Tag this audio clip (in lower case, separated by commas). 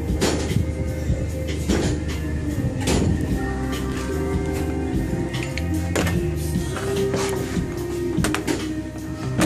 music